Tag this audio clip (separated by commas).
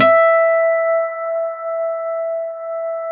Musical instrument, Plucked string instrument, Guitar, Acoustic guitar, Music